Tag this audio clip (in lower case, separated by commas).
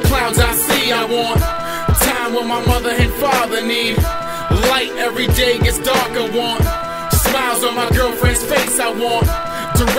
blues, music, rhythm and blues